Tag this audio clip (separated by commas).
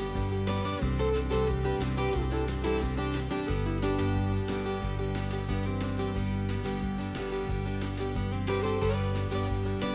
Music